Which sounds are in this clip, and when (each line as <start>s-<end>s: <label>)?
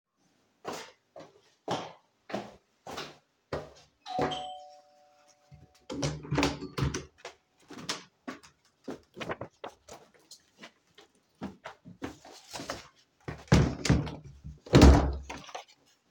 0.6s-3.9s: footsteps
4.0s-4.8s: bell ringing
5.7s-7.5s: door
13.1s-15.8s: door